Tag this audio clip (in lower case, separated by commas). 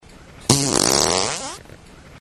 fart